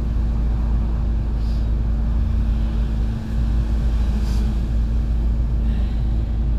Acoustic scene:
bus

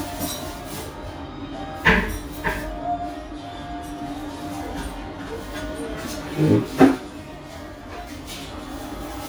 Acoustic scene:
restaurant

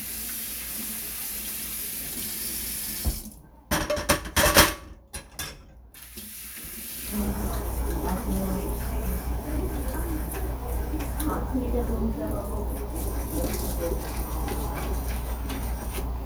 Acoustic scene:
kitchen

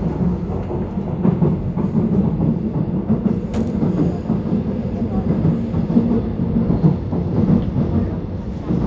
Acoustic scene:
subway train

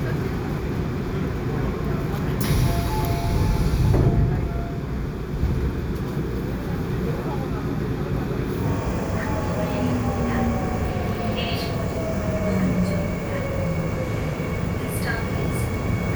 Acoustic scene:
subway train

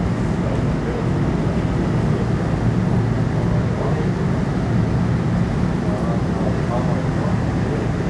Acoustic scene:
subway train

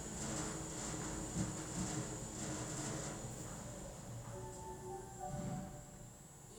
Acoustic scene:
elevator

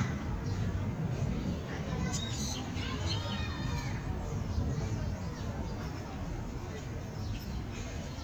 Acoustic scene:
park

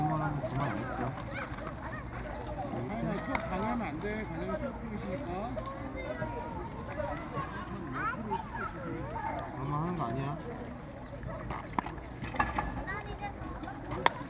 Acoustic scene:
park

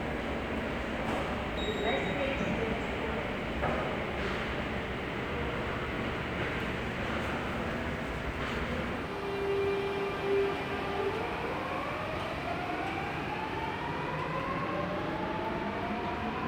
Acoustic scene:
subway station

